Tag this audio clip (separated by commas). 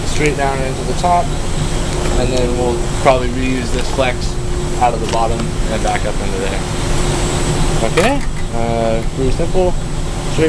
Speech